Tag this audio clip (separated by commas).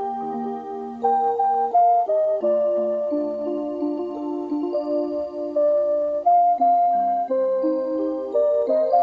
Music